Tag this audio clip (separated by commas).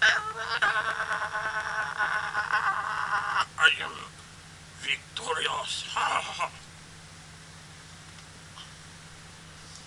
Speech